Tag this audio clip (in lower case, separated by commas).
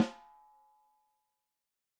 musical instrument, snare drum, drum, music, percussion